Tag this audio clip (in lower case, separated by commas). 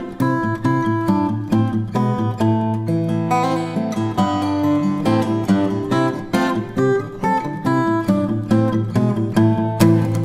plucked string instrument, musical instrument, music, guitar, strum